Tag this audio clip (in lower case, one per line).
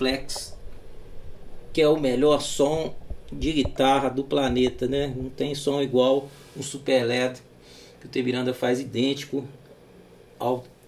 speech